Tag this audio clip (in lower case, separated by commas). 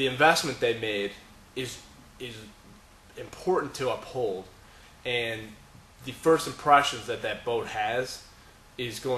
speech